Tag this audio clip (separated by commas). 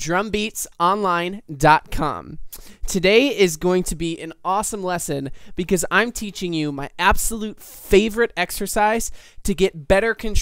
Speech